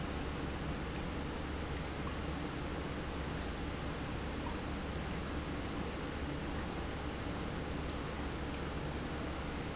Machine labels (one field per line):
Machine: pump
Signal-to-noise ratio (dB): -6 dB